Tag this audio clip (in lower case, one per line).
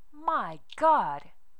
speech
female speech
human voice